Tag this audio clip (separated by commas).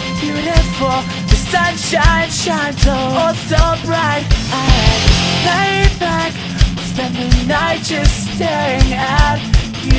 Music